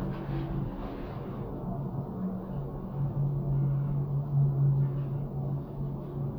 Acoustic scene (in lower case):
elevator